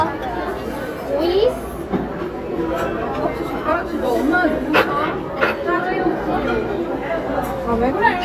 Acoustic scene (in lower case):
crowded indoor space